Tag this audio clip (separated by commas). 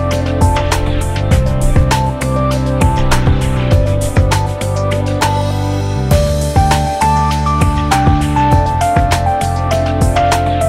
Music